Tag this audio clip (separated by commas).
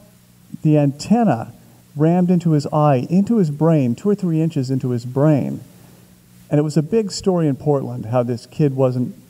Speech